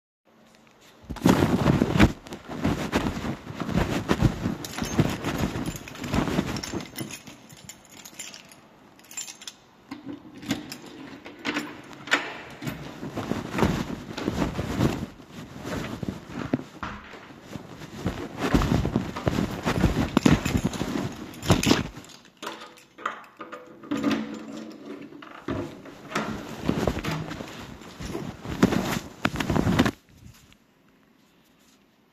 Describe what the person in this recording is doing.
I walked to my apartment with my phone in my pocket, took out my keys, opened the main door and entered. I walked to my bedroom door and opened it.